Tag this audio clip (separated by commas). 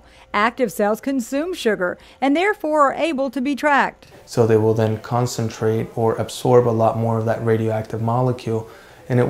Speech